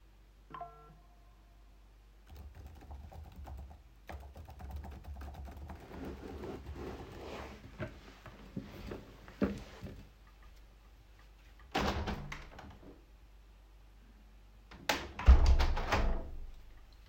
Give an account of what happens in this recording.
I received notification on my phone. Then I started typing text on keyboard. Finally I opened the window and then closed it